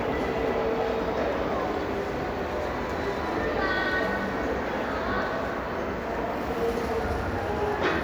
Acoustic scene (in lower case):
crowded indoor space